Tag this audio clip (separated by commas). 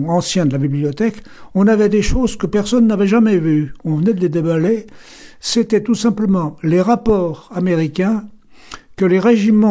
Speech, Radio